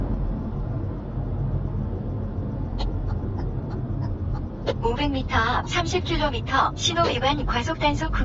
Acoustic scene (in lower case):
car